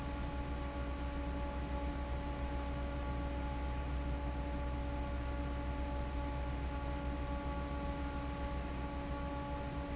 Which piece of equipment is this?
fan